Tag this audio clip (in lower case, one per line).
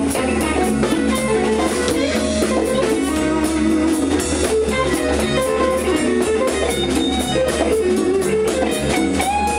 music
musical instrument
electric guitar
guitar